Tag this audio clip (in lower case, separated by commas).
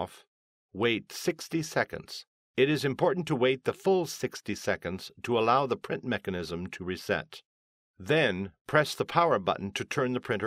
speech